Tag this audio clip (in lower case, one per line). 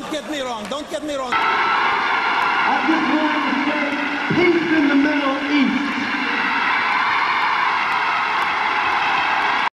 speech